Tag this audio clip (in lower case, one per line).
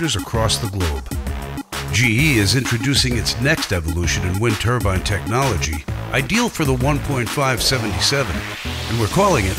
wind noise (microphone)
speech
music